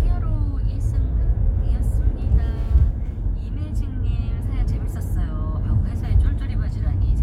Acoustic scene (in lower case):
car